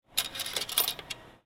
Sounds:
Coin (dropping), Domestic sounds

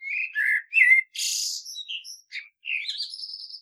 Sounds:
Bird, Animal, Wild animals

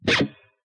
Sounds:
Plucked string instrument, Music, Musical instrument, Guitar

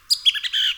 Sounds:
Bird, Wild animals, Animal, bird call

